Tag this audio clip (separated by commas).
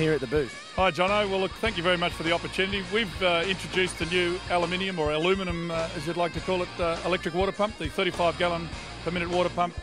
Speech, Music